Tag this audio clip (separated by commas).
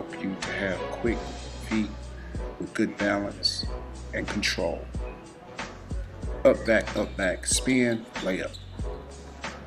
Music, Speech